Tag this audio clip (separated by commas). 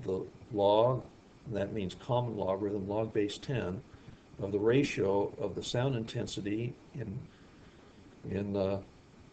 Speech